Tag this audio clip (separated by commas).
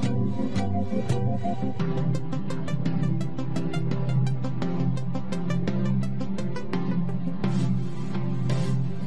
Music